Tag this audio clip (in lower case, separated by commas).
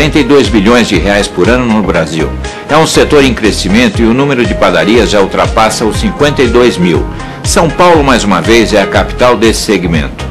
music, speech